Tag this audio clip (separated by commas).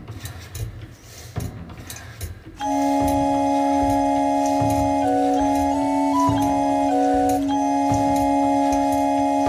Music, Independent music